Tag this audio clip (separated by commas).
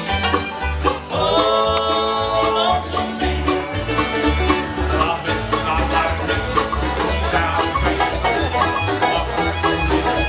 Music, Bluegrass